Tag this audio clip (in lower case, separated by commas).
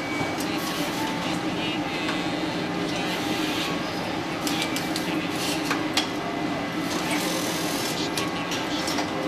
speech